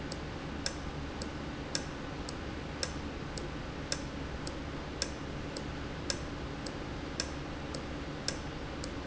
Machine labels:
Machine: valve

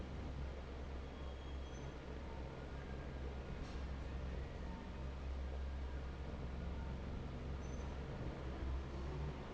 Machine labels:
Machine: fan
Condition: normal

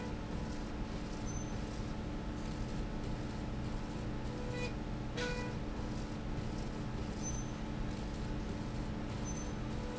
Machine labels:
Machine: slide rail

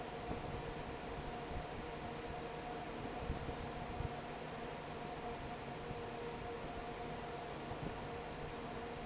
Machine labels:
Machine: fan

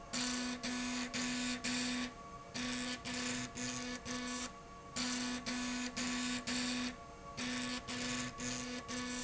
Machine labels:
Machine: slide rail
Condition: abnormal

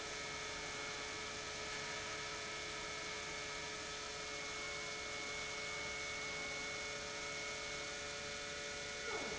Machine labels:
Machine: pump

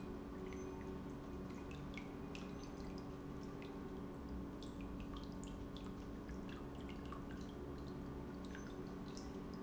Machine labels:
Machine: pump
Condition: normal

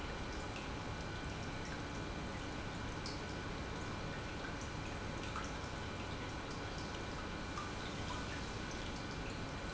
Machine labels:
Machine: pump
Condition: normal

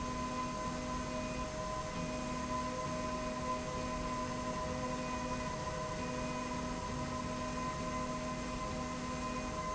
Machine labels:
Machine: slide rail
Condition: normal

